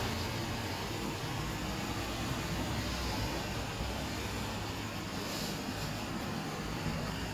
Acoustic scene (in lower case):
street